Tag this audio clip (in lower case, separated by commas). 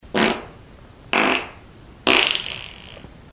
fart